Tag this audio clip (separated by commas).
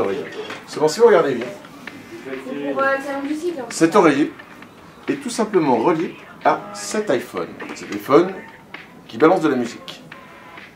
Speech